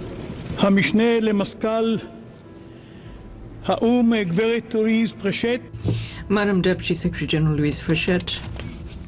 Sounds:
narration
man speaking
speech
woman speaking

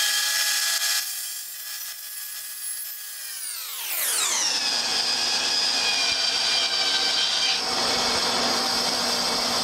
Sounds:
tools
wood

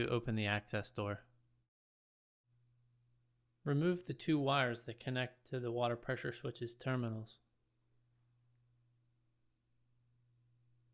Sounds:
speech

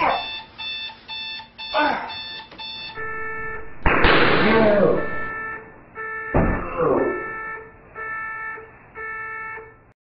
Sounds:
alarm

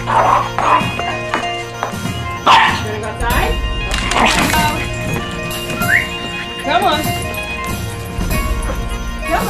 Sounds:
music
dog
animal
speech
pets
yip
bow-wow

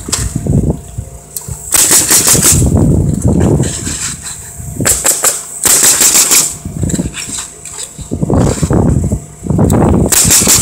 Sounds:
outside, urban or man-made

